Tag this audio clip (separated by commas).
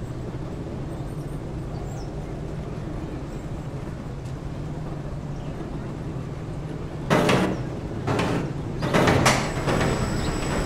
roller coaster running